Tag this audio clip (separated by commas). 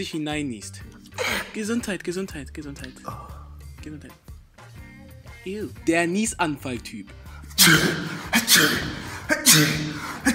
people sneezing